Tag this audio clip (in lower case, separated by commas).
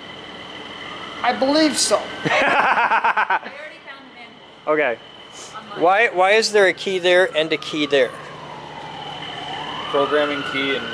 ambulance (siren), emergency vehicle, vehicle